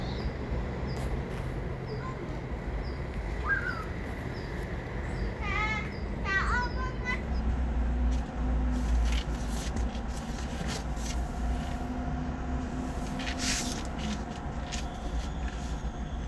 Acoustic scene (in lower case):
residential area